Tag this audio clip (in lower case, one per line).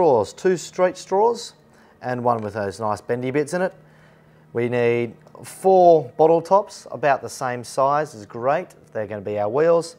speech